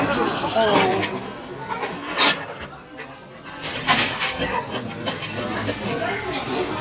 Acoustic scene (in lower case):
restaurant